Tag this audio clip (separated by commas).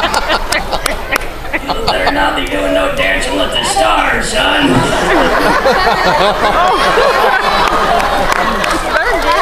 Speech, inside a large room or hall